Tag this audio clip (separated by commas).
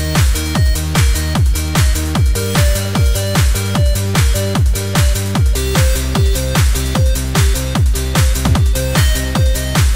Techno, Electronic music, Music